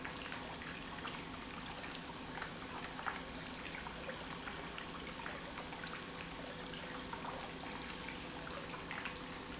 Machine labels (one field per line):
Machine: pump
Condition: normal